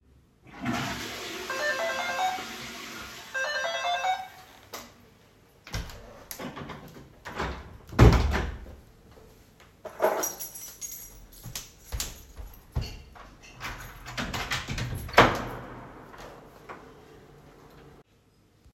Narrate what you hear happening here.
While I was flushing the toilet the bell ran. I shut the bathroom door, got my key and proceeded to open the apartment door.